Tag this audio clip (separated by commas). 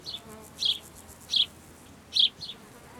Wild animals, Animal, Insect